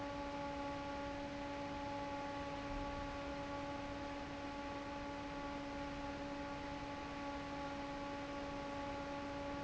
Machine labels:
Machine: fan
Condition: normal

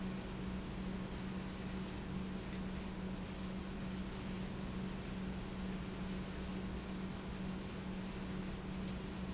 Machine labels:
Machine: pump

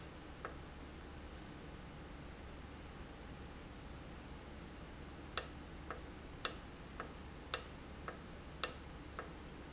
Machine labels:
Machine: valve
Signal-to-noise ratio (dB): 6 dB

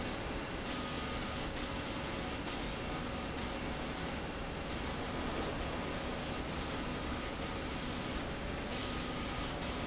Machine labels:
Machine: slide rail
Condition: abnormal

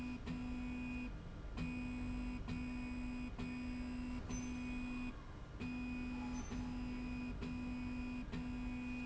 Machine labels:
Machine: slide rail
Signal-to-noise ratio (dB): 6 dB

